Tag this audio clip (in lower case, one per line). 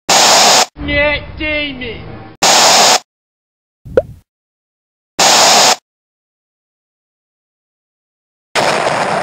speech
plop